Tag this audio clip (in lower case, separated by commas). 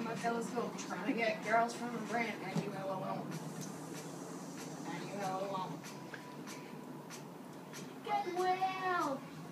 inside a small room, music